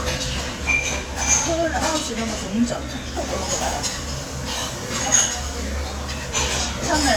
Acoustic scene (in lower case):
restaurant